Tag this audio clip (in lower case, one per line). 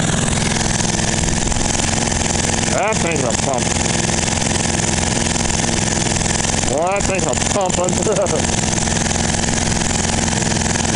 speech